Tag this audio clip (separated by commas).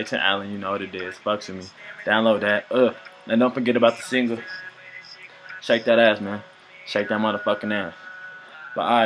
Speech